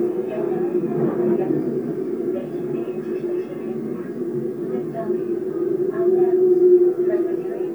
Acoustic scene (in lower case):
subway train